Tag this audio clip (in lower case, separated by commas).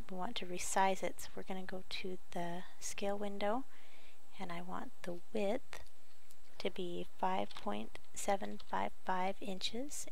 speech